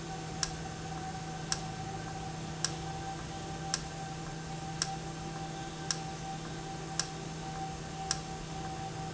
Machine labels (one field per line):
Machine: valve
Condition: normal